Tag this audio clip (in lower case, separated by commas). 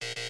alarm